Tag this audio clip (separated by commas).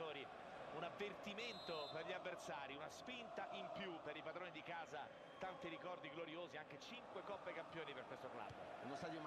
Speech